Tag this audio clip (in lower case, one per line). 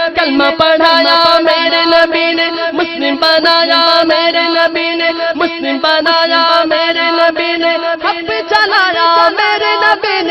reverberation